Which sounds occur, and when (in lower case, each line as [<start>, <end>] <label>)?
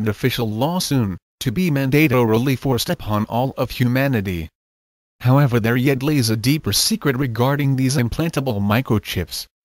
[0.01, 1.16] male speech
[1.36, 4.47] male speech
[5.13, 9.47] male speech